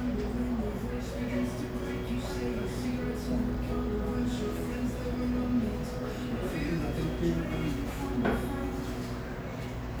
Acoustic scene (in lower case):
cafe